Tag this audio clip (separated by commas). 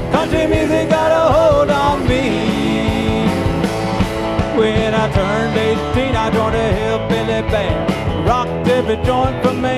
Music, Country